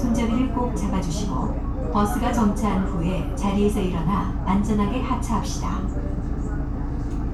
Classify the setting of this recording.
bus